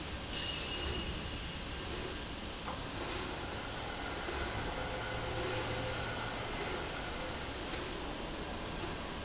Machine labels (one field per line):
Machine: slide rail